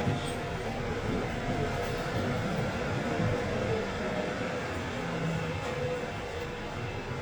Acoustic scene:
subway train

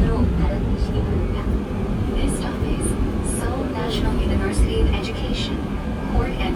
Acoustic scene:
subway train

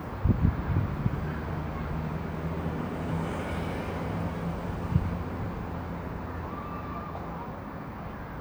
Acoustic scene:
residential area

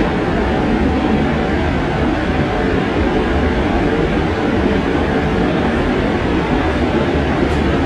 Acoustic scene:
subway train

